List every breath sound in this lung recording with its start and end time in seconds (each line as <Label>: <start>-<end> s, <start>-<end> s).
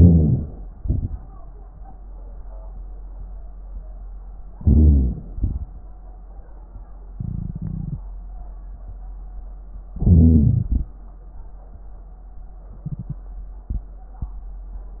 Inhalation: 0.00-0.72 s, 4.55-5.20 s, 9.91-10.69 s
Exhalation: 0.76-1.16 s, 5.37-5.63 s, 10.70-10.98 s
Wheeze: 0.00-0.72 s, 4.55-5.20 s